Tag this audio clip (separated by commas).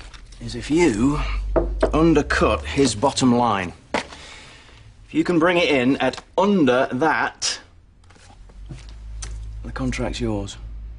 inside a small room, Speech